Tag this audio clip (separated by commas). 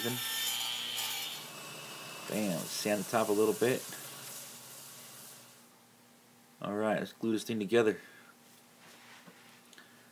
Power tool, Tools